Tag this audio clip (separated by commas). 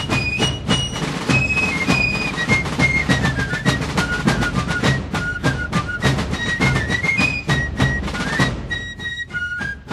Music